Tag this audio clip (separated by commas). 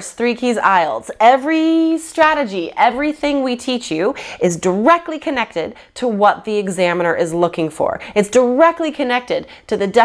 Speech